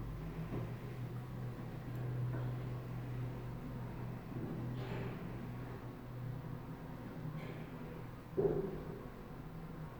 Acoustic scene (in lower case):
elevator